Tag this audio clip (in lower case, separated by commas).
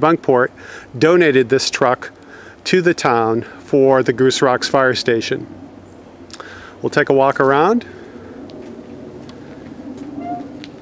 speech